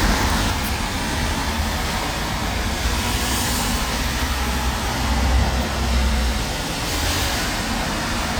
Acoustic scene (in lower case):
street